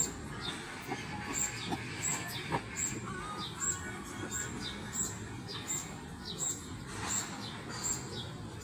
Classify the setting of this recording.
park